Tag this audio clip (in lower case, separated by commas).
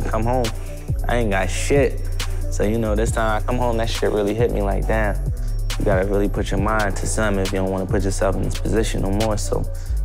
rapping